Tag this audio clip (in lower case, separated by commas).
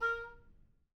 musical instrument, music, woodwind instrument